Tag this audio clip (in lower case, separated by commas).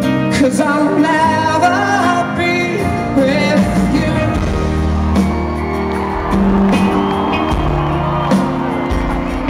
male singing, music